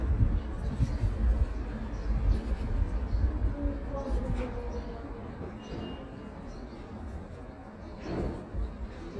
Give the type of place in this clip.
residential area